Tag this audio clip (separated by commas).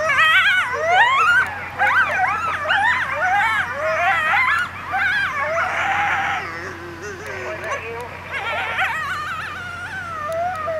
coyote howling